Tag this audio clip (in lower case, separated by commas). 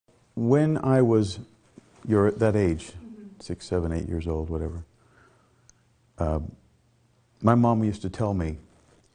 speech